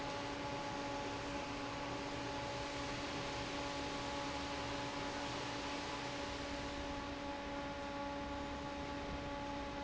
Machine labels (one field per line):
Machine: fan